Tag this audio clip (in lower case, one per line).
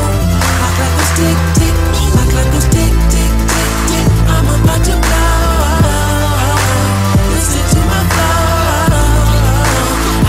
music